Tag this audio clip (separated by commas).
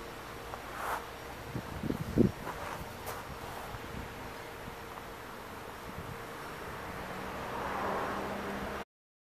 Vehicle, Car passing by, Motor vehicle (road)